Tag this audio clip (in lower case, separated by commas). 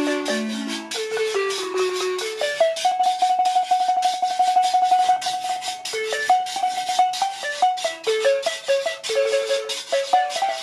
playing guiro